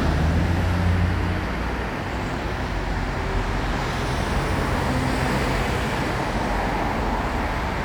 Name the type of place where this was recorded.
street